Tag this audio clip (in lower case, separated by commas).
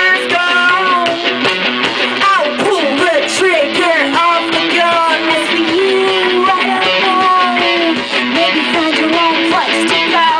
music